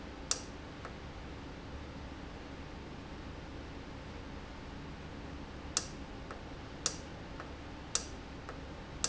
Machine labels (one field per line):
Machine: valve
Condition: normal